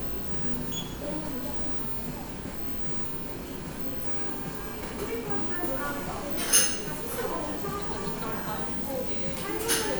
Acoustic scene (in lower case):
cafe